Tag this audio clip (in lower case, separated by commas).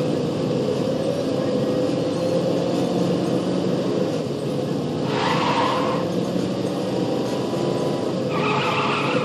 skidding, car, vehicle